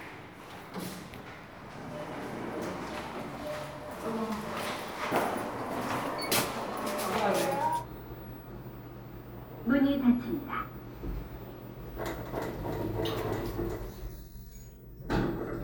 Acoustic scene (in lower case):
elevator